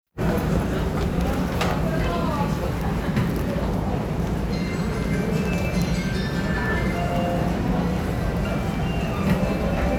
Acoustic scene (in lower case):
subway station